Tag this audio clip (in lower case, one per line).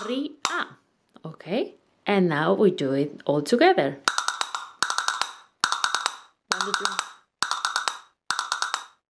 playing castanets